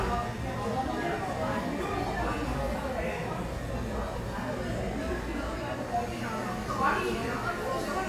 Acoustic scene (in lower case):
crowded indoor space